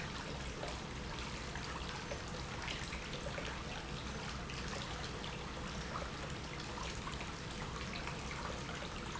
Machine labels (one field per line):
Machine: pump